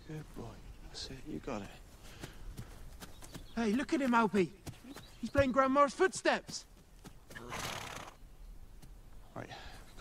A man speaking, accompanied by footsteps and a horse breathing